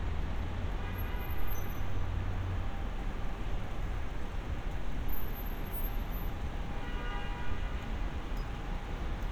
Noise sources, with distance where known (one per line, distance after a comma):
car horn